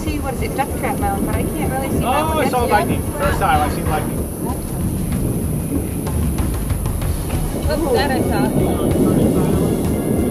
Humming with wind blowing and people speaking as thunder roars in the distance